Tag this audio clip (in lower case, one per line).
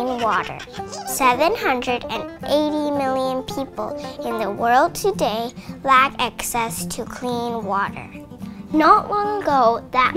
speech
music